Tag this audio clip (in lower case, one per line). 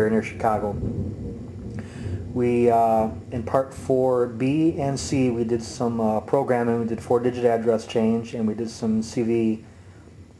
speech